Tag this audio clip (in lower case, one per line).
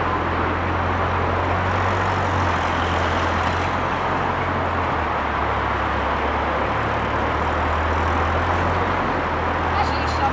speech